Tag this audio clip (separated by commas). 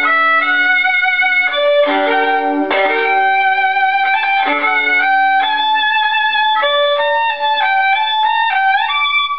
Musical instrument, Violin, Music